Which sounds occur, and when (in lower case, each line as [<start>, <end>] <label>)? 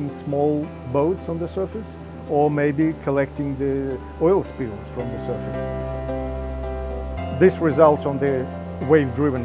[0.00, 0.64] man speaking
[0.00, 9.44] music
[0.93, 1.91] man speaking
[2.26, 3.96] man speaking
[4.20, 5.62] man speaking
[7.35, 8.48] man speaking
[8.81, 9.44] man speaking